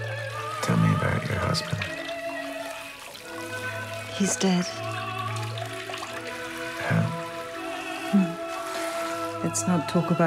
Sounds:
sink (filling or washing), water, water tap, bathtub (filling or washing)

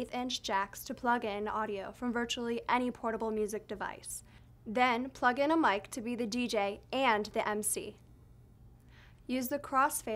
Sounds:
speech

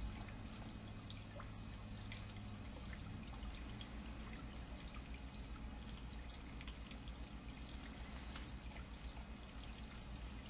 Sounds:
bird

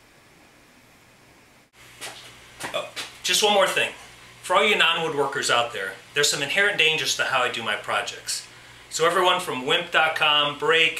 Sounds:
speech

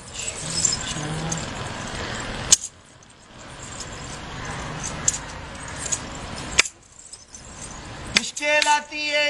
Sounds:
speech

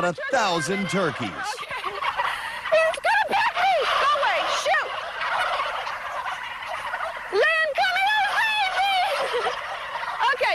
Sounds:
fowl, turkey, gobble

